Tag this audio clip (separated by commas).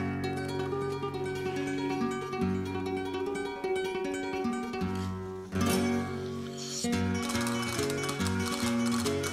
Flamenco